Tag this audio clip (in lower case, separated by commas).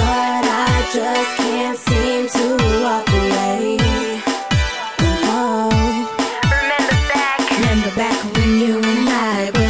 music, rhythm and blues, pop music, singing